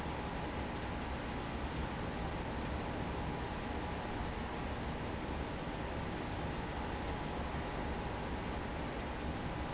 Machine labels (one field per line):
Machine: pump